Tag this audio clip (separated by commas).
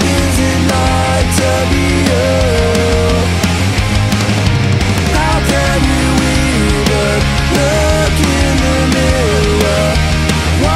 Music, Blues, Soul music